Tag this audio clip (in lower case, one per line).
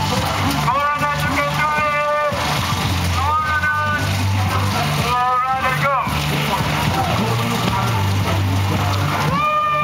music
speech
run